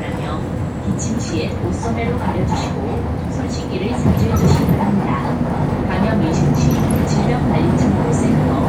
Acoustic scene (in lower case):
bus